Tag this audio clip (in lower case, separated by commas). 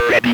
human voice, speech